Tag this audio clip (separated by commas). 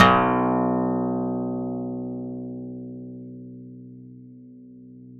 Musical instrument, Plucked string instrument, Music, Acoustic guitar, Guitar